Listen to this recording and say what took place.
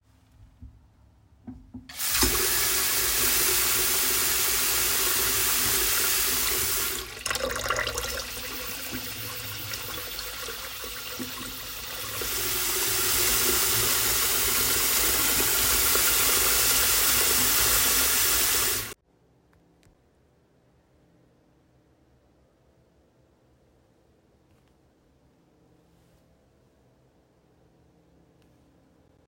I turned on the kitchen sink and adjusted the water pressure up and down. The running water is clearly audible while moving the phone around.